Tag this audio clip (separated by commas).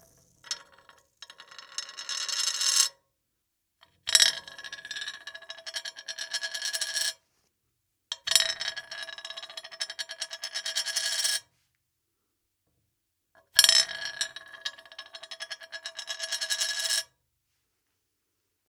Domestic sounds, Coin (dropping)